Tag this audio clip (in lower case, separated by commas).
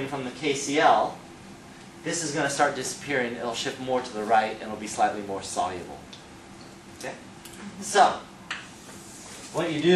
speech